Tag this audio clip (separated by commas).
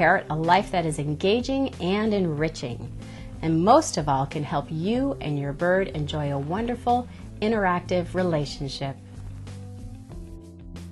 Music, Speech